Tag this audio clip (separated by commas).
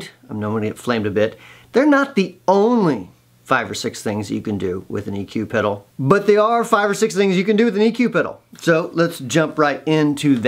Speech